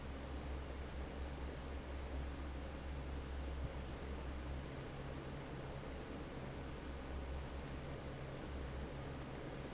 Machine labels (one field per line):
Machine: fan